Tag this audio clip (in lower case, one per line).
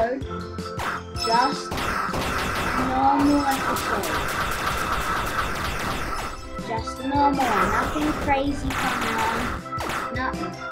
speech